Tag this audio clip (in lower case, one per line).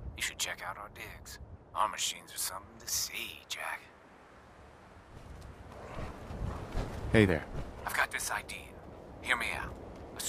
speech